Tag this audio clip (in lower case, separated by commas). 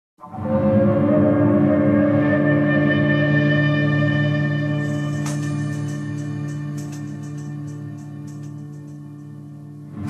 music, theremin